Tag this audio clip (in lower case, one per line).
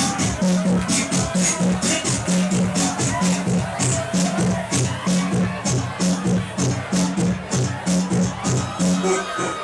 dance music
music